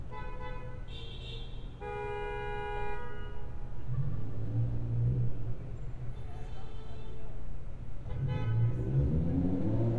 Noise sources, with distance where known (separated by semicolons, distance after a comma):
car horn, near